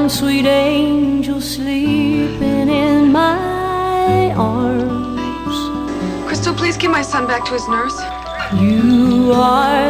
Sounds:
music
lullaby
speech

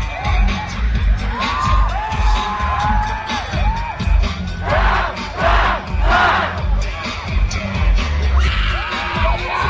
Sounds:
speech
music

